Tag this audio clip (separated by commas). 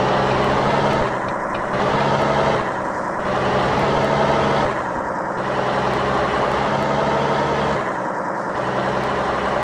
Medium engine (mid frequency), Whir